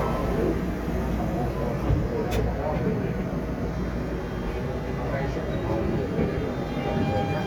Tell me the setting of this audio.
subway train